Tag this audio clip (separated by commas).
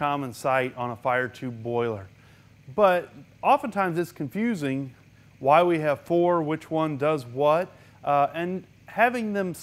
Speech